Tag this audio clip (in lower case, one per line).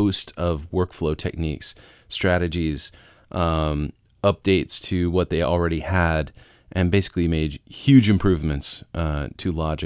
speech